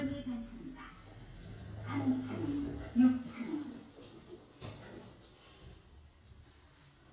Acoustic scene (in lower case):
elevator